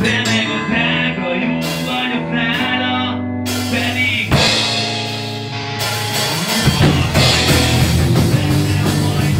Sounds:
Music, Rock and roll

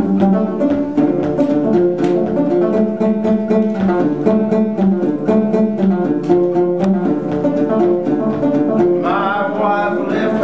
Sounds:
Banjo, Musical instrument, Plucked string instrument, Music

